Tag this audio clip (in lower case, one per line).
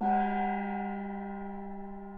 gong
music
percussion
musical instrument